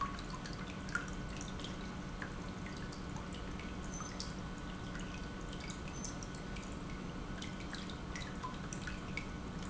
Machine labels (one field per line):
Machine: pump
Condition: normal